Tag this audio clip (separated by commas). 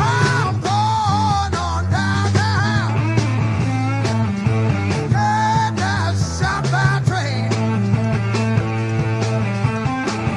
Singing, Music, Psychedelic rock